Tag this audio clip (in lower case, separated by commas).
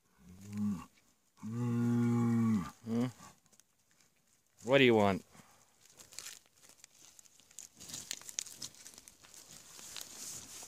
bull bellowing